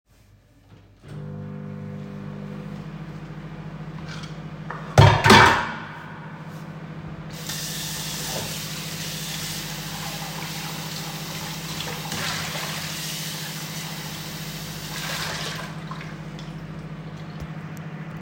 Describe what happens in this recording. I start the microwave, open the tap and start washing my dishes.